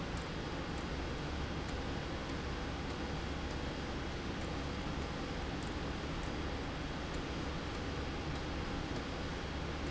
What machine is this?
slide rail